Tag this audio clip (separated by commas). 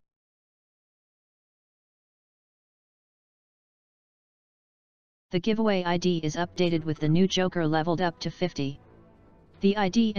Speech, Silence